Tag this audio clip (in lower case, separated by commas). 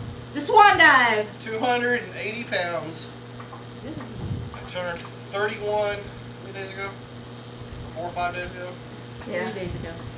speech